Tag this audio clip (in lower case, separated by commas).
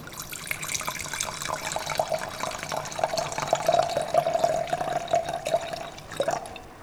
liquid